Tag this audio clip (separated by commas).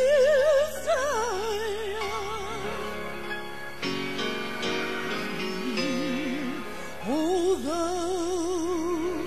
Gospel music, Music